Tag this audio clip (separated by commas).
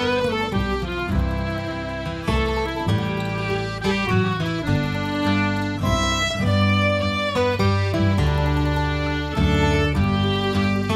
Accordion